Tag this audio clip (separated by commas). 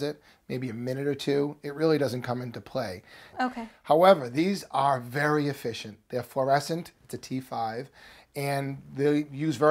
Speech